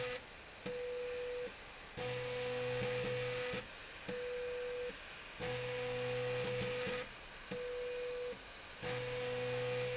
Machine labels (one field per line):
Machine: slide rail